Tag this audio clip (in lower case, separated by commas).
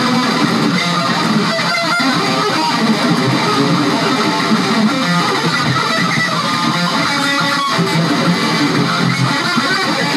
guitar, strum, musical instrument, music, plucked string instrument